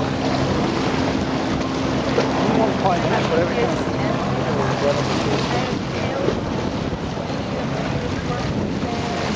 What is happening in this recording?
The sailboat cruises across the top of the sea with the help of some strong winds while people talk in the background.